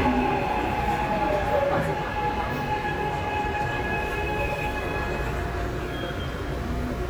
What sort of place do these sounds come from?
subway train